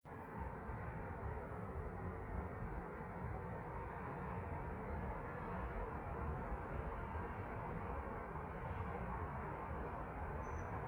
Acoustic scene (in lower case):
street